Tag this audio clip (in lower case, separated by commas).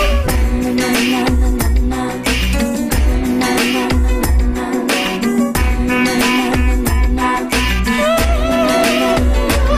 music, inside a small room